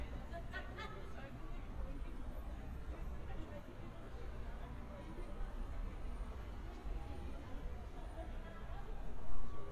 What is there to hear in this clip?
large-sounding engine, person or small group talking